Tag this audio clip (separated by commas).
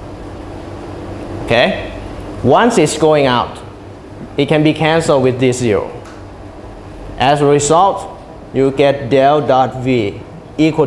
inside a small room, Speech